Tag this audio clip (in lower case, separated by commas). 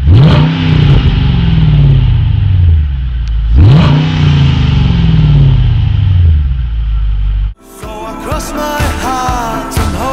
vehicle, car, music, accelerating